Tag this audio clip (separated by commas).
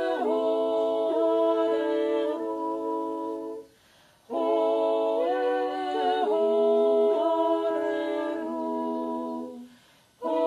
yodelling